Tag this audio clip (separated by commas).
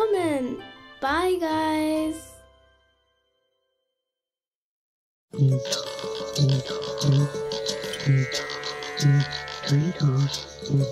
Speech, Music